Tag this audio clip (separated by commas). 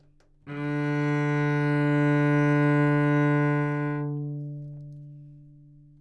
Musical instrument, Music, Bowed string instrument